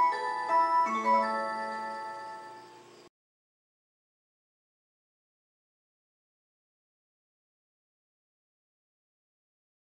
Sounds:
Music

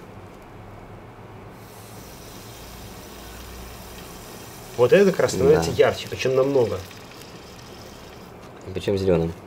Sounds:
Fill (with liquid), Speech

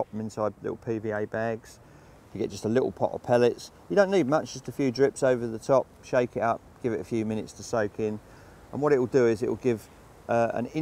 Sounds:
Speech

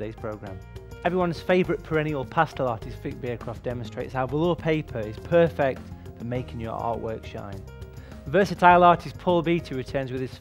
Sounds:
Music, Speech

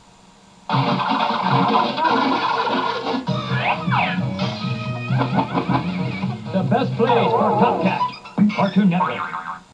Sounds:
Music, Speech

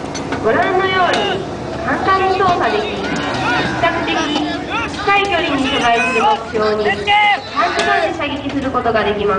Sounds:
Speech

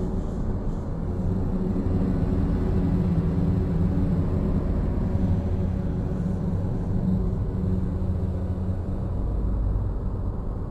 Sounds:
Music, Mantra

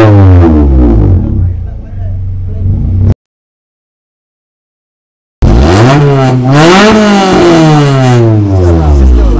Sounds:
Sound effect, Speech

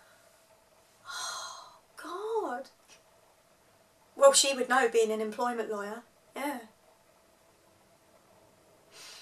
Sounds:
monologue, Speech

